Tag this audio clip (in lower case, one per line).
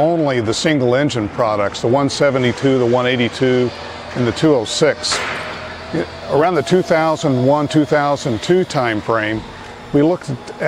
speech